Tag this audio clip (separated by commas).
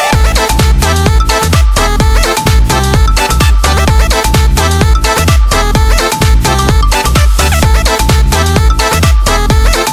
Music